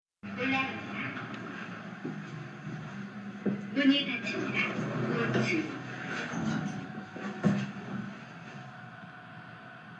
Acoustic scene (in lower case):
elevator